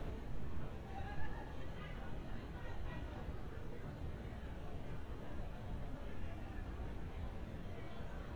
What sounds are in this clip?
person or small group talking, person or small group shouting